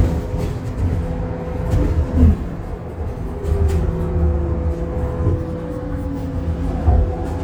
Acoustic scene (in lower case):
bus